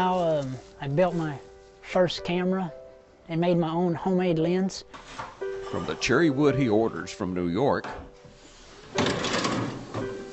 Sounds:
music, speech

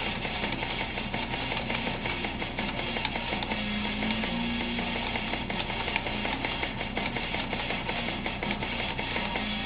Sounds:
guitar, electric guitar, musical instrument, music

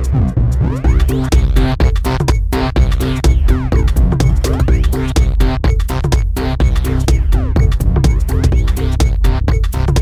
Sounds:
music

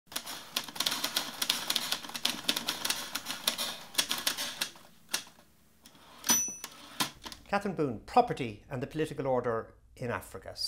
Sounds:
speech, inside a small room, typewriter

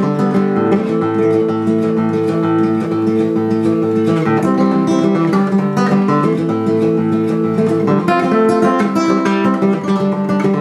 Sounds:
music

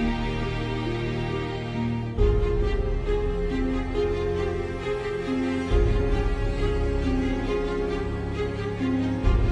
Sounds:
music

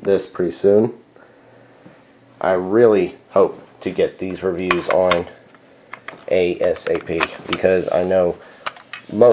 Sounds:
speech, inside a small room

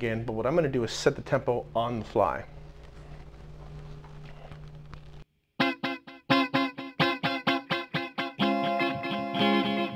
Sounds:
speech, music

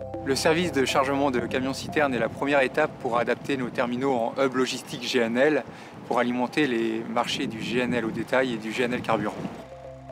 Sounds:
music, speech

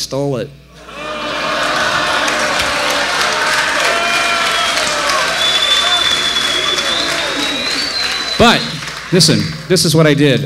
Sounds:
speech

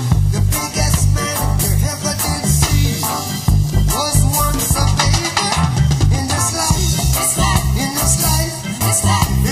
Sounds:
music, reggae, ska

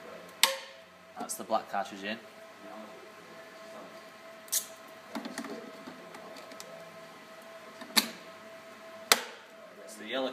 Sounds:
speech

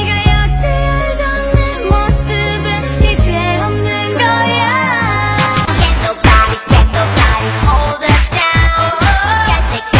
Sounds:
female singing, music

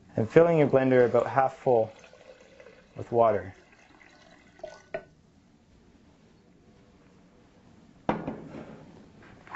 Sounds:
speech, drip

